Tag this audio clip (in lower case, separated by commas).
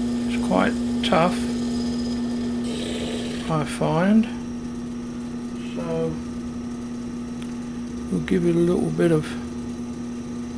speech, power tool